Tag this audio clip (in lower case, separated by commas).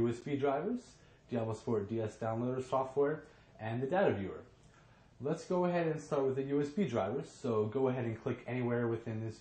speech, inside a small room